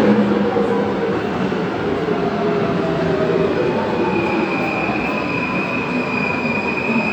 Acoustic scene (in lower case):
subway station